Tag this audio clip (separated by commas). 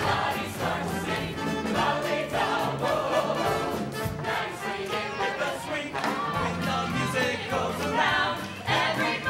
Music